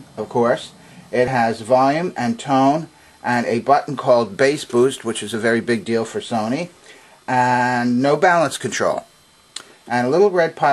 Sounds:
speech

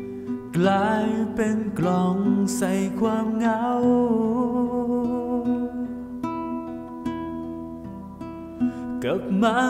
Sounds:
music

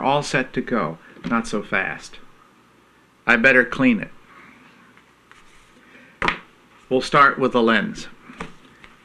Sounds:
speech

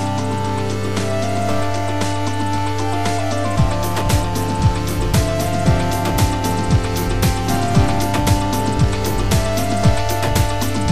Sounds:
music

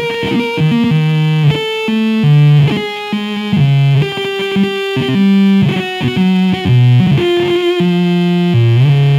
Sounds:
music, distortion

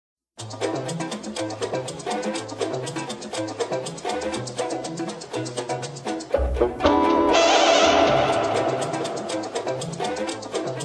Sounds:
music, traditional music

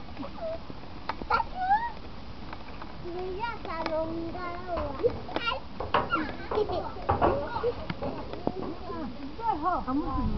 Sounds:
speech

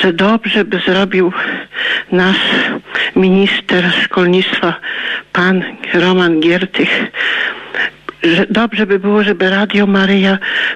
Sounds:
speech

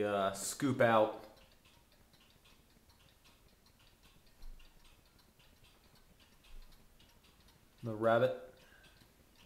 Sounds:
speech

